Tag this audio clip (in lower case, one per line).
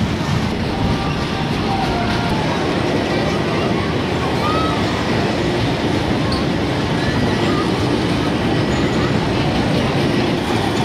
speech